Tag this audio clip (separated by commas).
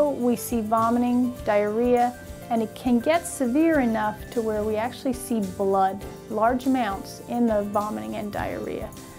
Music, Speech